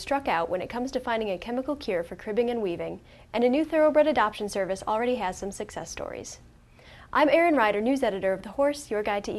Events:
0.0s-2.9s: female speech
0.0s-9.3s: mechanisms
3.0s-3.2s: breathing
3.3s-6.4s: female speech
6.6s-7.1s: breathing
7.1s-9.3s: female speech

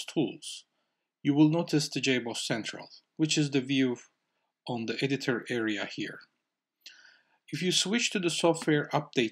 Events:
0.0s-0.6s: man speaking
0.0s-9.3s: background noise
0.7s-1.1s: breathing
1.2s-3.0s: man speaking
3.1s-3.2s: tick
3.2s-4.1s: man speaking
4.2s-4.5s: breathing
4.6s-6.3s: man speaking
6.8s-7.4s: breathing
7.4s-9.3s: man speaking
8.6s-8.7s: clicking

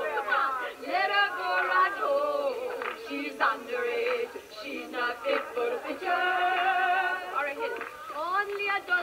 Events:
0.0s-0.8s: woman speaking
0.0s-9.0s: background noise
0.8s-4.4s: choir
1.3s-2.0s: woman speaking
2.5s-3.2s: woman speaking
2.8s-2.9s: clapping
3.9s-4.9s: woman speaking
4.0s-4.2s: clapping
4.5s-7.3s: choir
5.1s-5.8s: woman speaking
5.3s-5.5s: clapping
7.3s-7.7s: woman speaking
7.5s-8.1s: human voice
7.7s-7.9s: clapping
8.1s-9.0s: child singing
8.5s-8.6s: clapping

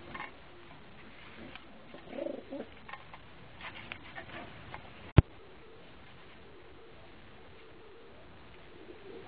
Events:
0.0s-0.3s: pigeon
0.0s-5.0s: background noise
1.3s-2.6s: coo
1.4s-1.5s: tick
2.8s-3.1s: pigeon
2.8s-2.9s: tick
3.6s-4.5s: pigeon
3.8s-3.9s: tick
4.6s-4.7s: tick
5.1s-5.2s: tick
5.2s-5.7s: coo
6.3s-7.0s: coo
7.5s-8.1s: coo
8.6s-9.2s: coo

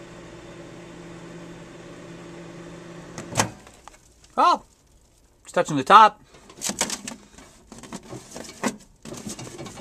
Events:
0.0s-3.5s: microwave oven
3.5s-6.3s: background noise
5.4s-6.2s: male speech
6.3s-9.8s: generic impact sounds

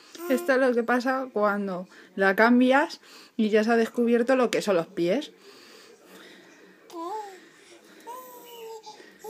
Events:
0.0s-2.1s: mechanisms
0.1s-0.2s: tick
0.1s-0.5s: human sounds
0.3s-1.8s: woman speaking
0.7s-0.8s: tick
1.8s-2.1s: breathing
2.1s-9.2s: television
2.1s-3.0s: woman speaking
3.0s-3.3s: breathing
3.4s-5.3s: woman speaking
4.9s-9.2s: man speaking
5.3s-8.4s: breathing
6.8s-7.4s: human sounds
6.9s-7.0s: tick
7.8s-8.0s: generic impact sounds
8.0s-9.0s: human sounds
8.4s-8.8s: bird song
8.8s-9.2s: breathing
9.2s-9.2s: human sounds

